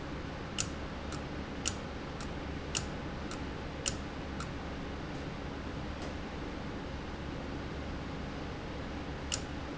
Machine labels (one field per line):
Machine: valve